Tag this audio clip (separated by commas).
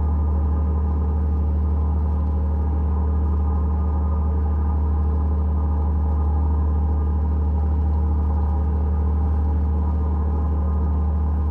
Boat, Vehicle